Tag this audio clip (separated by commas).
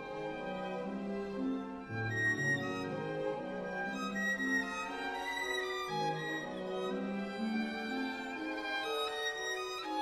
Music, Musical instrument, fiddle